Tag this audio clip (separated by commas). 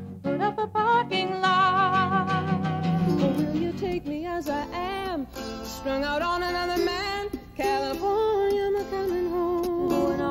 Music, Rock and roll